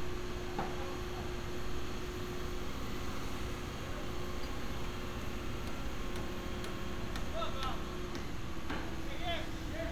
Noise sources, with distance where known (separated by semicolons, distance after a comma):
person or small group shouting, far